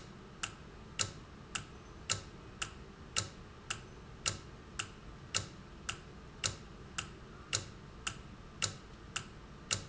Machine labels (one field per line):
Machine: valve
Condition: normal